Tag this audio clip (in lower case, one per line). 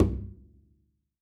musical instrument
bowed string instrument
music